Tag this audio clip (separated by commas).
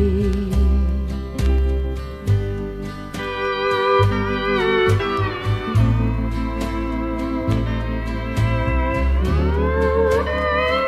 Music